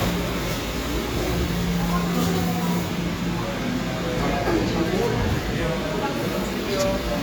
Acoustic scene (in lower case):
cafe